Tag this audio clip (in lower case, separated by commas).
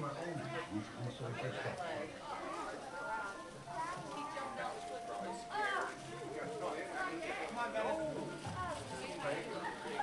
music, speech